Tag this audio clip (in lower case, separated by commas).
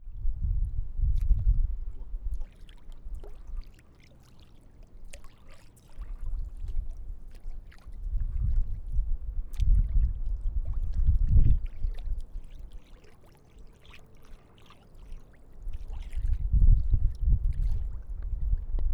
wind